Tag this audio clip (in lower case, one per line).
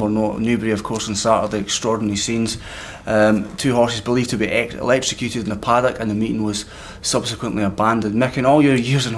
speech